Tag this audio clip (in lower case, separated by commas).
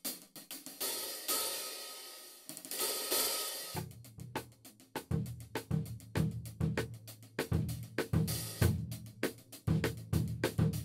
musical instrument, drum kit, music, drum, snare drum, percussion, hi-hat, bass drum